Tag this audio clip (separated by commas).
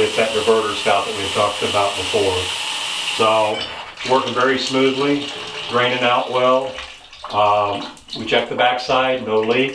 Speech, Bathtub (filling or washing), faucet